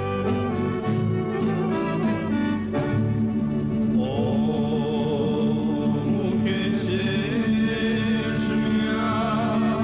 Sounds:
music

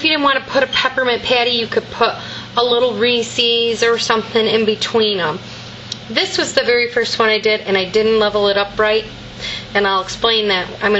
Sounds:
speech

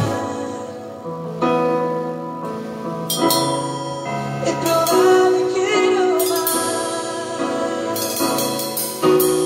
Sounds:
drum kit
music
drum
musical instrument
cymbal

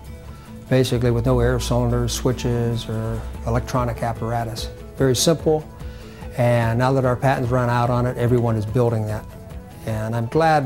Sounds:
speech
music

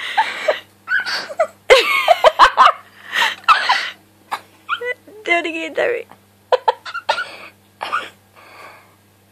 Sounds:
people sneezing

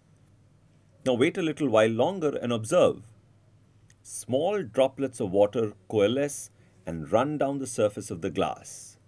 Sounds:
speech

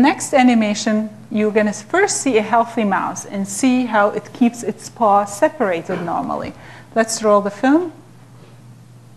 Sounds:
speech

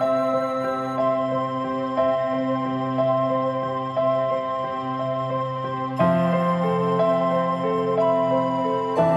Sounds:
music
new-age music

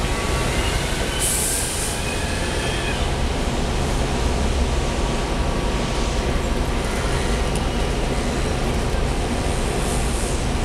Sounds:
bicycle
vehicle

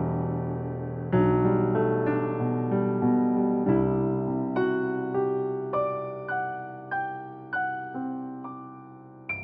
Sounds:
music

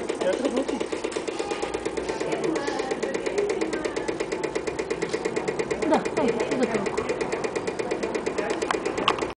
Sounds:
heavy engine (low frequency)
speech

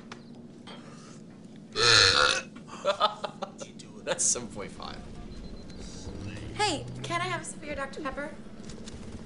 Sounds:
people burping

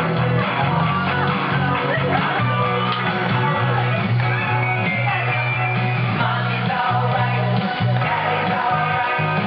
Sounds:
guitar
music
strum
acoustic guitar
speech
plucked string instrument
musical instrument

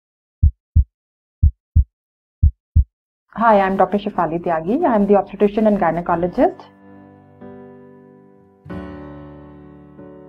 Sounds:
music
speech
inside a small room

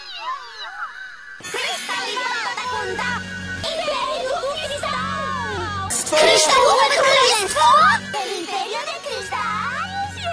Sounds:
speech
music

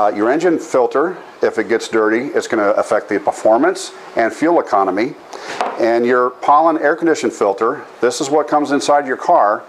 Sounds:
speech

